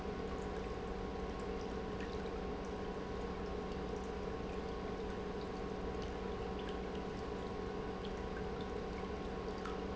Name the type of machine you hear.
pump